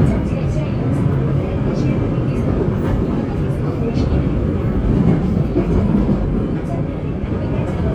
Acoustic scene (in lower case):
subway train